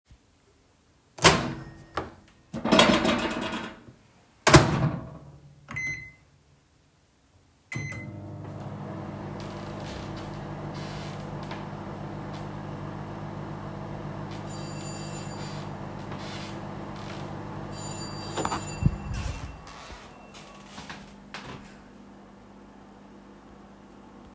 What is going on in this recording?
I open-closed the microwave, started it and someone rang the doorbell.